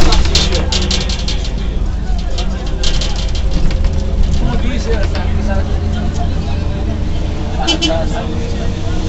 Chatter and then a car horn beeping